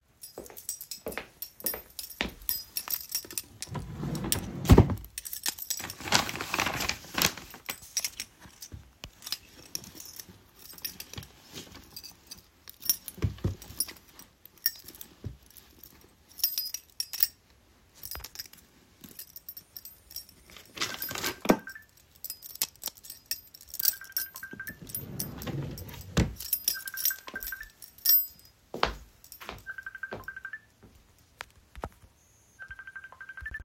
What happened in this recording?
While holding my keychain, I walked over the drawer and pulled it. I briefly searched inside the drawer while having the keychain on my hand. Then, my phone started ringing. While the phone was ringing, I shut the drawer and walked across the room to pick up the phone.